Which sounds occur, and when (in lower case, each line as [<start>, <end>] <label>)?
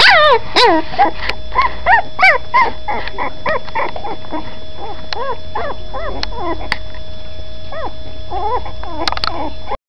[0.00, 0.37] yip
[0.00, 9.74] mechanisms
[0.49, 0.78] yip
[0.95, 1.30] yip
[1.12, 1.35] generic impact sounds
[1.50, 1.66] yip
[1.80, 1.99] yip
[2.14, 2.35] yip
[2.51, 2.68] yip
[2.84, 3.29] yip
[2.92, 3.12] generic impact sounds
[3.42, 4.40] yip
[3.44, 3.88] generic impact sounds
[4.75, 4.97] yip
[5.03, 5.20] generic impact sounds
[5.09, 5.34] yip
[5.54, 5.76] yip
[5.92, 6.73] yip
[6.11, 6.25] generic impact sounds
[6.61, 6.83] generic impact sounds
[7.67, 7.86] yip
[8.26, 8.69] yip
[8.84, 9.46] yip
[8.97, 9.29] generic impact sounds
[9.62, 9.72] yip